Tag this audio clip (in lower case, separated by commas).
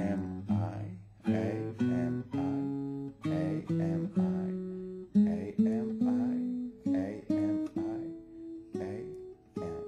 plucked string instrument, acoustic guitar, strum, musical instrument, guitar, music